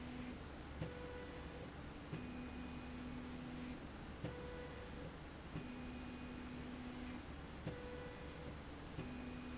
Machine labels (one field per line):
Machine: slide rail